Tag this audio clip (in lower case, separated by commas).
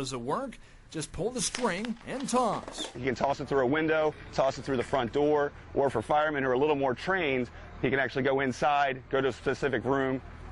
speech